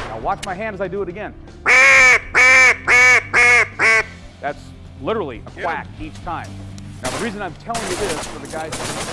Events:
[0.01, 9.12] music
[0.01, 1.25] man speaking
[1.60, 2.14] bird
[2.25, 4.12] bird
[4.34, 4.57] man speaking
[4.88, 5.85] man speaking
[5.93, 6.46] man speaking
[6.97, 9.12] man speaking
[7.00, 7.52] gunshot
[7.61, 9.12] gunshot

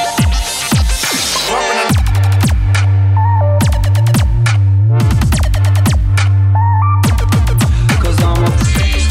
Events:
[0.00, 9.10] music
[1.47, 1.91] male singing
[7.79, 9.10] male singing

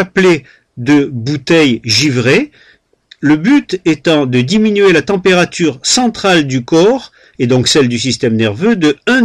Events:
[0.00, 0.40] man speaking
[0.00, 9.24] background noise
[0.36, 0.63] breathing
[0.75, 2.46] man speaking
[2.48, 2.83] breathing
[3.08, 7.02] man speaking
[7.05, 7.41] breathing
[7.37, 9.24] man speaking

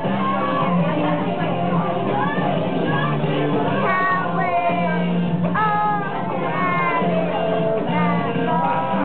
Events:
[0.00, 9.04] mechanisms
[0.00, 9.04] music
[0.14, 1.16] singing
[1.69, 3.81] singing
[3.78, 5.33] child singing
[5.54, 6.17] child singing
[6.47, 7.15] child singing
[7.81, 9.04] singing
[7.91, 9.04] child singing

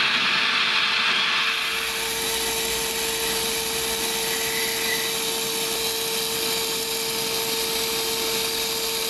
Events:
[0.00, 9.05] fire
[0.00, 9.05] mechanisms

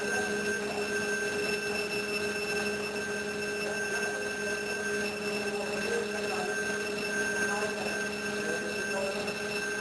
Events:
[0.00, 9.80] mechanisms
[0.01, 0.91] human voice
[2.53, 2.65] generic impact sounds
[5.52, 6.53] human voice
[7.35, 7.90] human voice
[8.38, 9.80] human voice

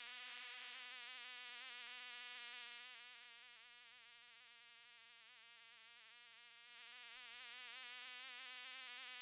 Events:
[0.00, 9.21] mosquito

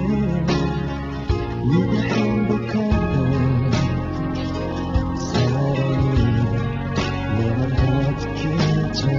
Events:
[0.00, 0.64] male singing
[0.00, 9.15] music
[1.63, 4.08] male singing
[5.14, 6.80] male singing
[7.25, 9.15] male singing

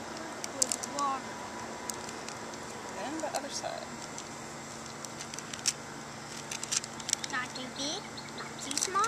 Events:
[0.00, 9.05] mechanisms
[0.10, 1.04] crinkling
[0.48, 1.24] kid speaking
[1.84, 2.95] crinkling
[2.91, 3.89] female speech
[3.12, 3.58] crinkling
[3.97, 4.23] crinkling
[4.73, 5.75] crinkling
[6.41, 7.56] crinkling
[7.04, 9.05] tweet
[7.25, 8.00] kid speaking
[8.51, 9.05] crinkling
[8.67, 9.05] kid speaking

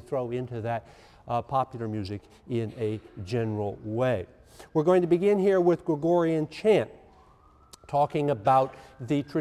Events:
[0.00, 0.78] man speaking
[0.00, 9.40] mechanisms
[0.83, 1.23] breathing
[1.25, 2.17] man speaking
[2.44, 4.25] man speaking
[2.65, 3.11] cough
[2.92, 9.40] siren
[4.41, 4.68] breathing
[4.73, 6.97] man speaking
[7.58, 7.77] human sounds
[7.84, 7.92] tick
[7.84, 8.71] man speaking

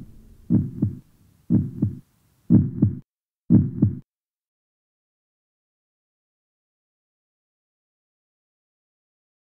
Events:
[3.43, 4.00] background noise
[3.46, 4.00] heartbeat

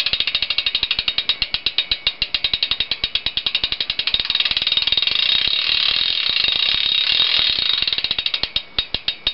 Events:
[0.00, 9.33] pawl

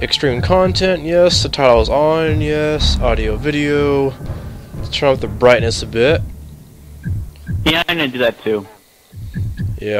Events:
[0.00, 4.11] man speaking
[0.00, 9.95] music
[0.00, 9.95] video game sound
[4.87, 6.16] man speaking
[6.17, 9.95] fire
[6.93, 7.08] bleep
[7.34, 7.56] bleep
[7.62, 8.71] man speaking
[9.31, 9.62] bleep
[9.74, 9.95] man speaking

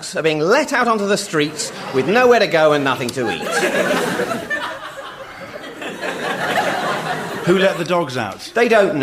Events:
[0.00, 1.76] man speaking
[1.50, 2.57] laughter
[1.53, 2.57] crowd
[1.99, 3.42] man speaking
[3.10, 3.15] tick
[3.33, 7.59] laughter
[3.36, 7.62] crowd
[7.44, 9.02] man speaking
[7.87, 7.93] tick
[8.13, 8.18] tick

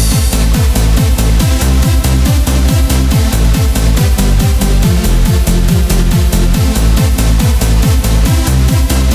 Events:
[0.00, 9.14] music

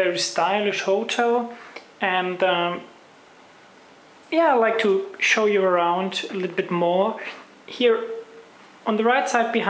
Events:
[0.00, 1.56] male speech
[0.00, 9.65] mechanisms
[1.51, 1.73] breathing
[1.74, 1.84] tick
[2.02, 2.97] male speech
[4.29, 7.16] male speech
[7.19, 7.49] breathing
[7.70, 8.27] male speech
[8.85, 9.65] male speech

